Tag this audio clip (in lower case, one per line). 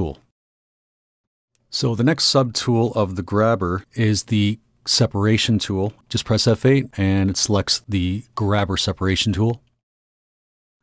speech